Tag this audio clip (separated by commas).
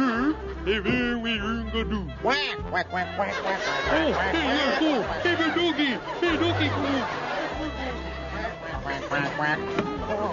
Speech, Music, Quack